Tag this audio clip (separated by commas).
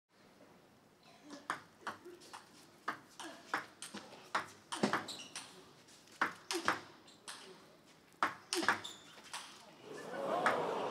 playing table tennis